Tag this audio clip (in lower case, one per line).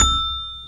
xylophone
mallet percussion
music
percussion
musical instrument